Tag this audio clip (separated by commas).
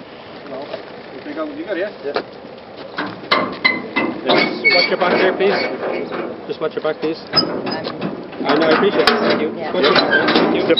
Speech